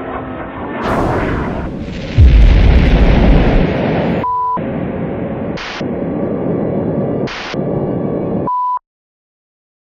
A loud explosion then some beeping